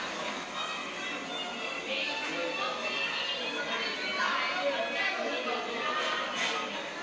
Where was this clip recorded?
in a cafe